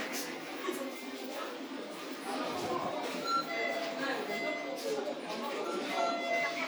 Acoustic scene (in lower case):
crowded indoor space